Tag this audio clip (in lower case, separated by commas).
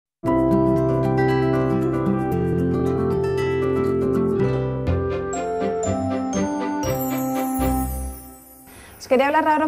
speech, music